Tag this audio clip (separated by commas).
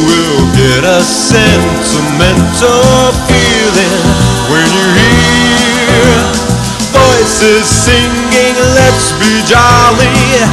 Music, Christmas music